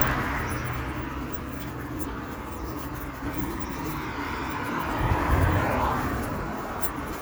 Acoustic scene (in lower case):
street